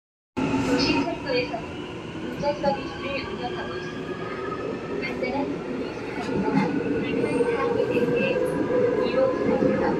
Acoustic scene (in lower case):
subway train